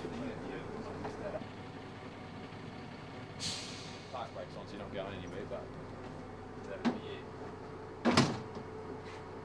An engine running with distant murmuring